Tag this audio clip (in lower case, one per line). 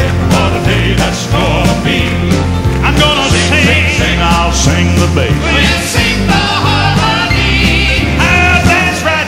music